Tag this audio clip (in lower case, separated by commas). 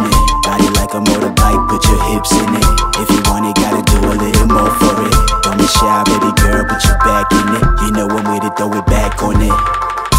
music